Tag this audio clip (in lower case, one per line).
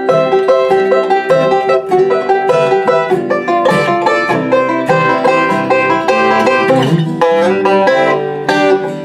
playing banjo